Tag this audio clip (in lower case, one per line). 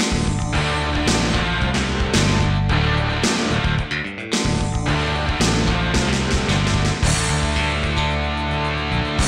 music